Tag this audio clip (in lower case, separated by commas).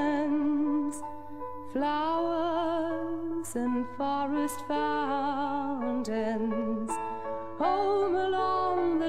music